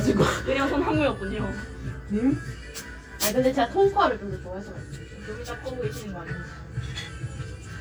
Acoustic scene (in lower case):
cafe